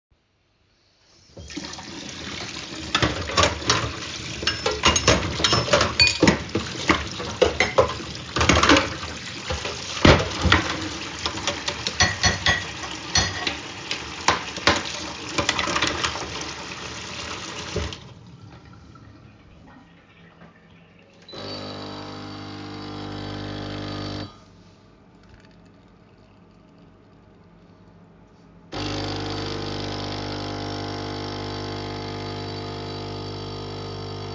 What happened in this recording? I opened the kitchen tap and washed dishes while the water was running. Then I closed the tap and turned on the coffee machine.